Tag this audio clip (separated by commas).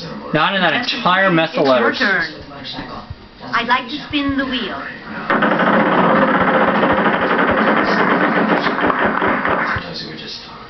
Speech